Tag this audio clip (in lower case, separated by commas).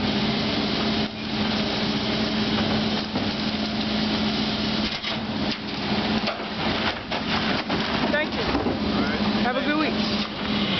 truck, speech